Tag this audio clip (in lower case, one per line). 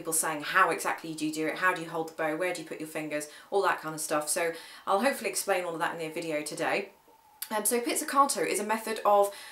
speech